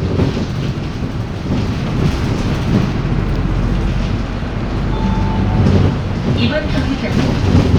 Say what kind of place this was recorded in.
bus